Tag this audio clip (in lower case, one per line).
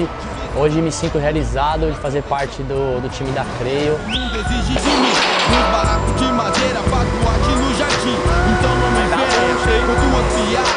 speech
music